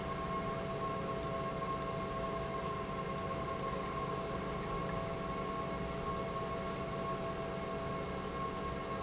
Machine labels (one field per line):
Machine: pump